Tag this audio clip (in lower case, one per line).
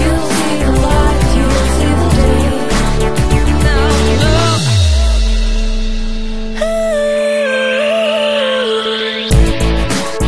music